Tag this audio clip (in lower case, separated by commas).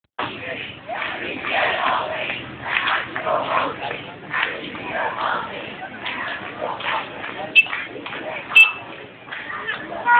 speech, outside, urban or man-made